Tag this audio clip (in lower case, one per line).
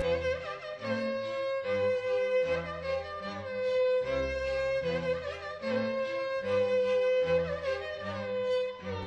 music